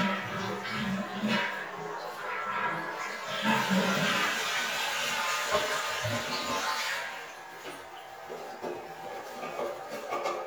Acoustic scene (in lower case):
restroom